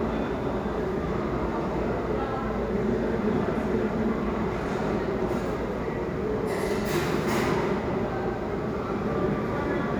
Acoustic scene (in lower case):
restaurant